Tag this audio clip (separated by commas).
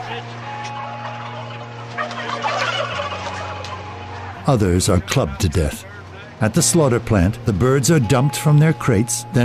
Speech, Music